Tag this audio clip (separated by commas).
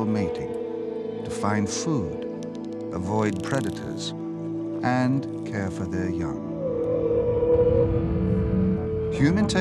Music, Speech